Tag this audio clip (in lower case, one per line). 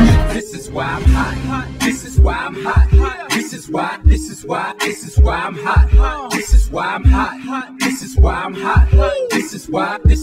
music